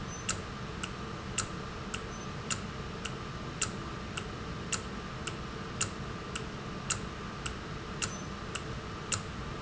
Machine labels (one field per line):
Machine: valve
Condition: normal